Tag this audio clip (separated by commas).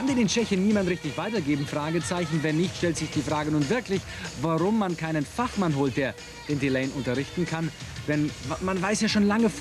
Speech, Rock and roll, Music